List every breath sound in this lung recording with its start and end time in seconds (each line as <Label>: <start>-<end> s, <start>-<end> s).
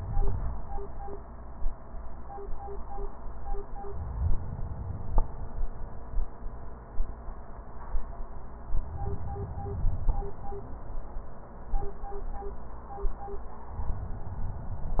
Inhalation: 3.80-5.98 s, 8.73-10.99 s